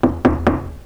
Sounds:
Knock, Domestic sounds, Door

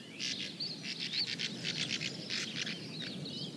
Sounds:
Animal, Bird, Wild animals

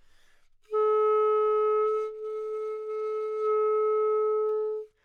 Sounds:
woodwind instrument, Musical instrument, Music

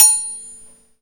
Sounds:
Domestic sounds, dishes, pots and pans, Cutlery

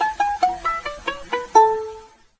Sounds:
Musical instrument, Bowed string instrument, Music

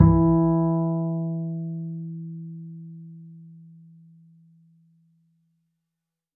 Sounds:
Musical instrument, Bowed string instrument, Music

